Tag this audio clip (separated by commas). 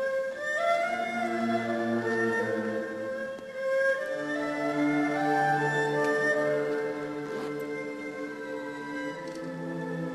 Orchestra, Music